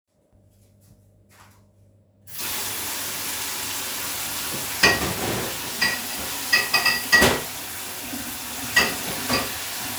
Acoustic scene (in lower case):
kitchen